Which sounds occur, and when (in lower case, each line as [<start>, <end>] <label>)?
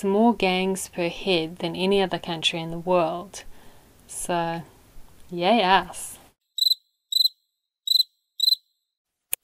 [0.00, 3.43] woman speaking
[0.00, 9.43] background noise
[3.47, 4.03] breathing
[4.07, 4.60] woman speaking
[5.29, 6.34] woman speaking
[6.56, 6.73] cricket
[7.10, 7.31] cricket
[7.84, 8.06] cricket
[8.32, 8.57] cricket
[9.25, 9.43] clicking